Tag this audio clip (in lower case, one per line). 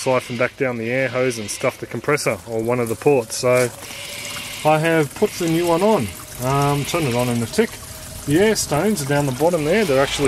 speech